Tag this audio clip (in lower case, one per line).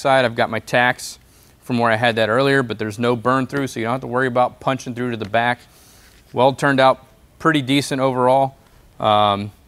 arc welding